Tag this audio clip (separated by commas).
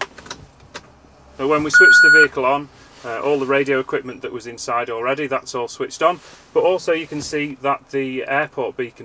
Speech